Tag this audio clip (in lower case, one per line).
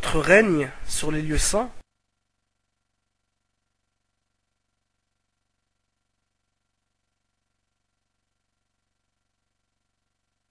speech